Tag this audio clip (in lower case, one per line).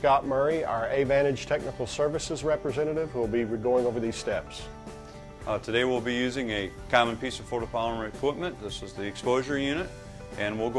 speech
music